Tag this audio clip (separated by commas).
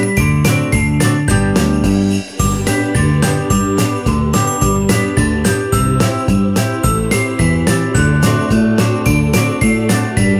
Music, Electronic music